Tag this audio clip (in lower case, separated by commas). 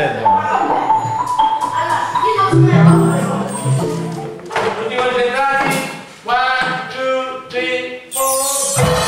xylophone, musical instrument, speech, music